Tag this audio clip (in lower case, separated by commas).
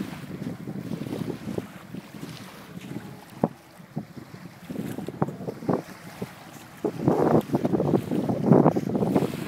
vehicle, water vehicle